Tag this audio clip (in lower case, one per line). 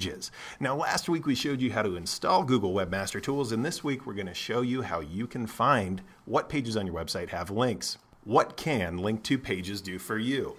speech